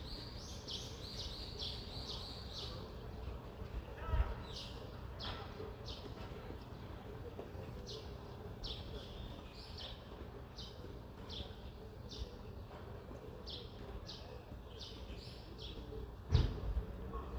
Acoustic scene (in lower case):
residential area